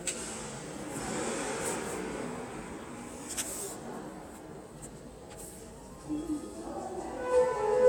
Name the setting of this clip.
subway station